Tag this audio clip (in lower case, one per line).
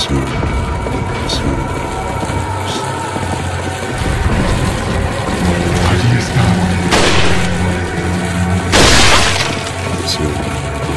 speech
inside a large room or hall
music